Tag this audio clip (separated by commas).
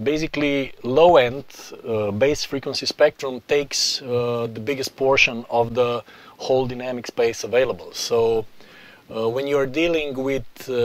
Speech